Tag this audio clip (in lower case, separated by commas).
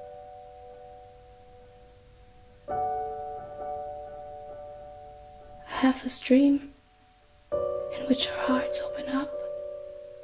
music, speech